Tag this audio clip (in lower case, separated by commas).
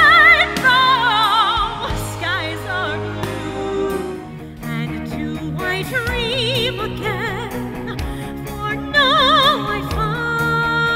music